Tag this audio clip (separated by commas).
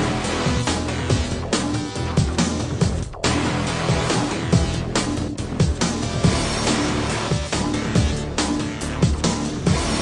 Soundtrack music, Music